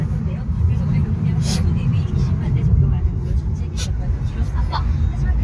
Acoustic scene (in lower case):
car